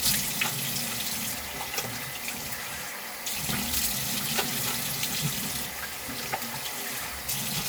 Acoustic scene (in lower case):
restroom